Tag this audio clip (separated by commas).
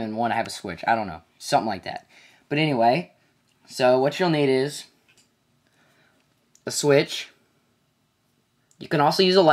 Speech